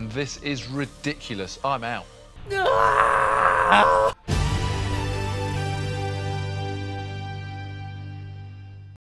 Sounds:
music, speech

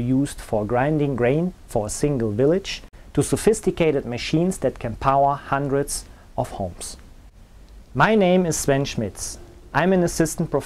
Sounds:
speech

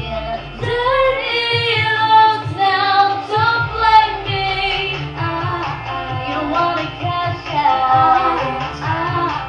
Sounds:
music, female singing

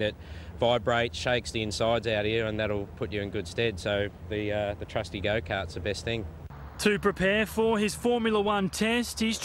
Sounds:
speech

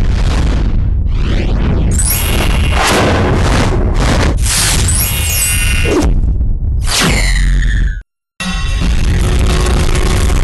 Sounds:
music

